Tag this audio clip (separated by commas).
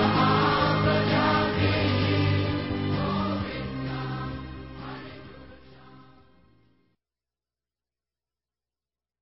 Music